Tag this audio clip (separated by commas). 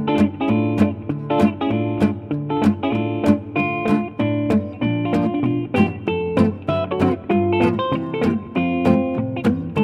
Music